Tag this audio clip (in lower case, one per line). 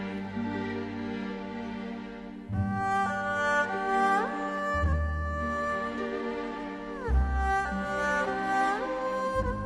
music
tender music